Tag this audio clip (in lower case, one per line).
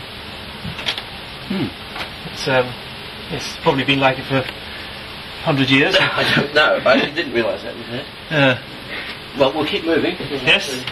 speech